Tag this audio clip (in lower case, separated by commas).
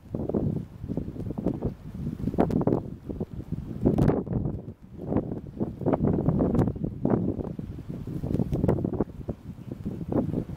outside, rural or natural